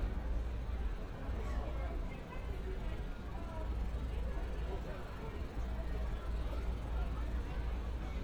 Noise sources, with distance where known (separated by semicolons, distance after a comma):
unidentified human voice